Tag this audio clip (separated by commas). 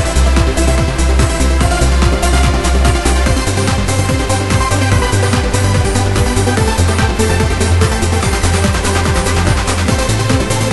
Music